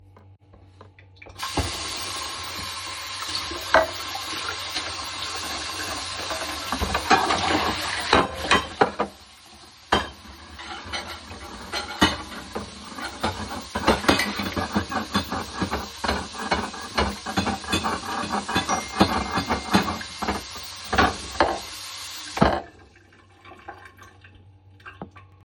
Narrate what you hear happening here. The recording was made in a kitchen with the phone placed statically. The water was turned on and while it was running a pan was cleaned in the sink causing it to hit other cutlery. While both the water and cutlery sounds were ongoing a phone notification was received. Finally the water was turned off.